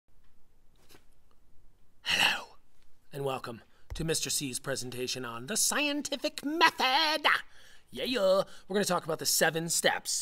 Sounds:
speech

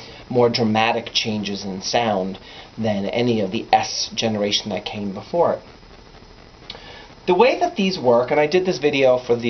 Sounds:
speech

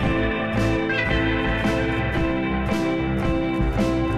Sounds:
music

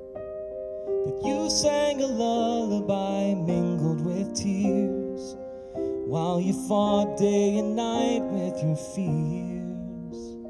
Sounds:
music

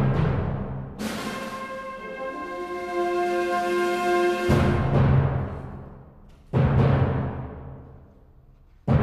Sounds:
orchestra, timpani, music, trumpet

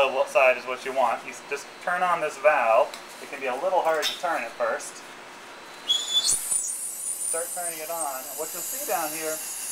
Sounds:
inside a small room, speech

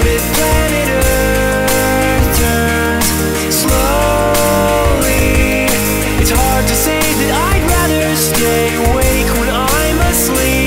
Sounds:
music

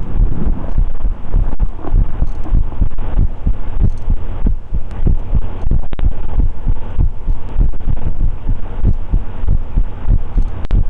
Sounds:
throbbing, heart sounds, hum

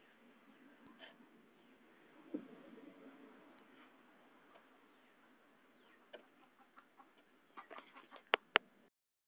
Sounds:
cluck, chicken, fowl

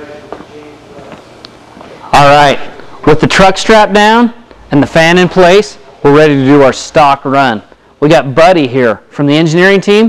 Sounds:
speech

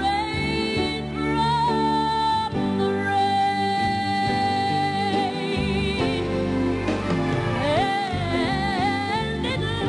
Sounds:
music

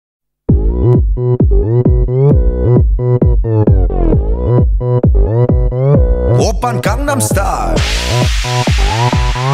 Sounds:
music

